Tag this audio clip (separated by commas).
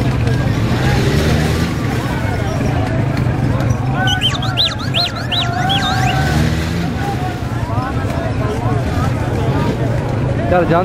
Speech, Vehicle